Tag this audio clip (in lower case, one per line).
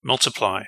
male speech
speech
human voice